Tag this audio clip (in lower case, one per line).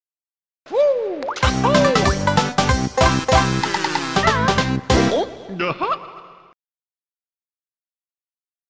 music
speech